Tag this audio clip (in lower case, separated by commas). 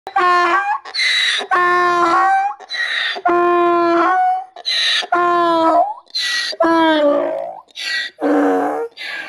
ass braying